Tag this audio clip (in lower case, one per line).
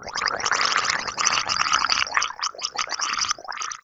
liquid